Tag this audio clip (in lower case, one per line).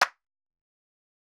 hands
clapping